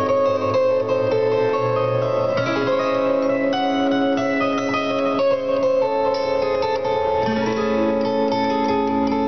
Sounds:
playing zither

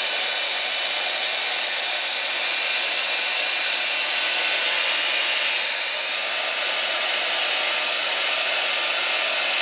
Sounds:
Hair dryer

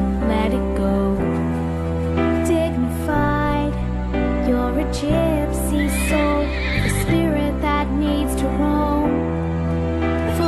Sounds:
Music

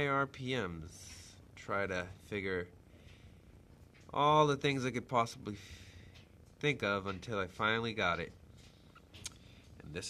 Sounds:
Speech

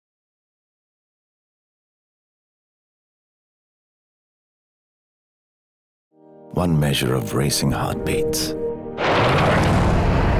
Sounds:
Speech, Silence, Car, Music, Vehicle

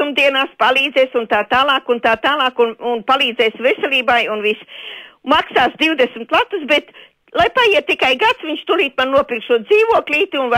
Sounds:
Speech

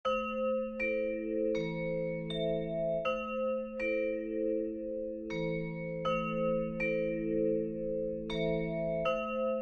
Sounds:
Tubular bells

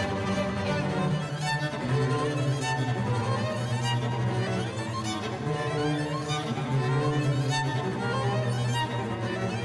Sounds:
playing double bass

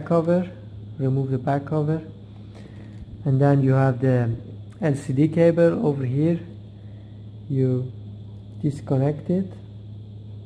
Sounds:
Speech

